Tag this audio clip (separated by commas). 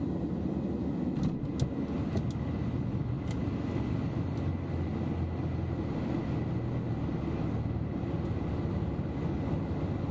Vehicle, airplane, Field recording